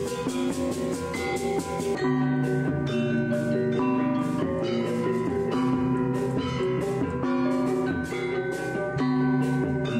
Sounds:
Gong

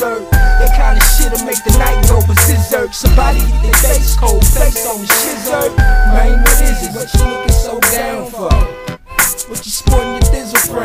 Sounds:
Hip hop music, Music, Rapping

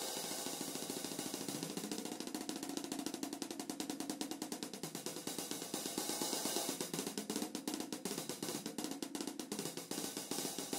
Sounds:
Drum, Musical instrument, Music, Drum kit

